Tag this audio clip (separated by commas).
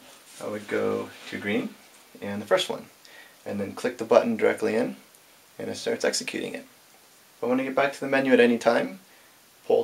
Speech